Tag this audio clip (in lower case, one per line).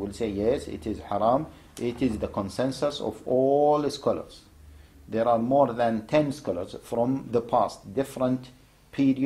speech